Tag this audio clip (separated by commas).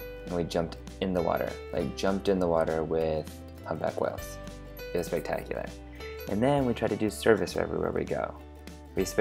Speech, Music